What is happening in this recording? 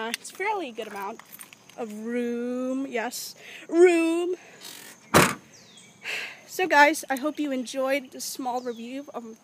A girl speaking and a door sound